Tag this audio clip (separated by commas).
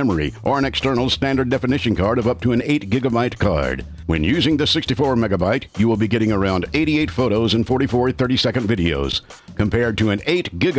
Speech, Music